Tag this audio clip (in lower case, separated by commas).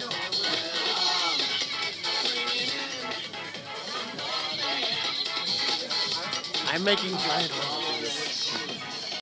music, speech